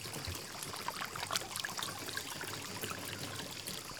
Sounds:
cricket
animal
water
wild animals
insect

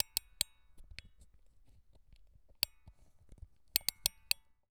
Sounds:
tick

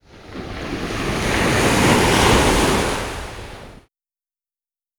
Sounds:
water
ocean
surf

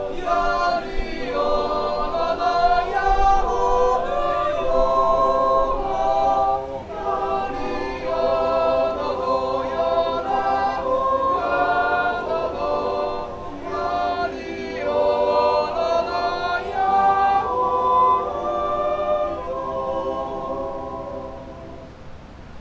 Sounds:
human voice
singing

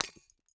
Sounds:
glass
shatter

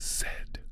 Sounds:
whispering
human voice

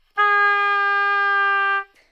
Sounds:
musical instrument
music
woodwind instrument

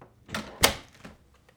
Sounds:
slam
door
domestic sounds

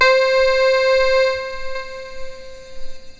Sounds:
keyboard (musical)
musical instrument
music

